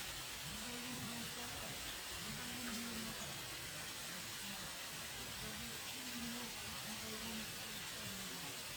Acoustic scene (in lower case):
park